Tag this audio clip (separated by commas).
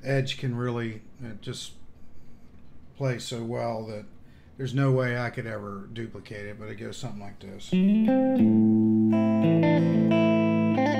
Guitar, Speech, Musical instrument, Plucked string instrument, Strum, Music